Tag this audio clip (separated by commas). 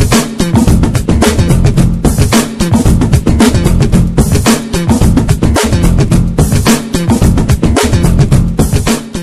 Music